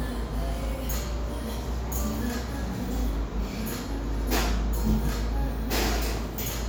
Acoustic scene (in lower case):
cafe